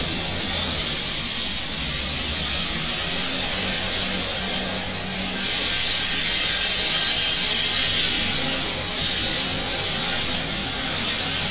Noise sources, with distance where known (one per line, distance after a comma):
unidentified impact machinery